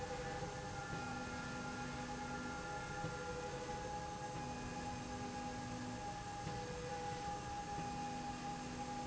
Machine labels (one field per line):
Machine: slide rail